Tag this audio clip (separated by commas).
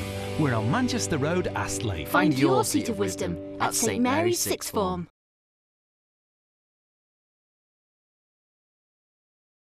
Music, Speech, Radio